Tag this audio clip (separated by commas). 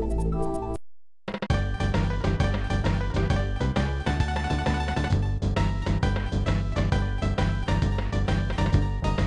Music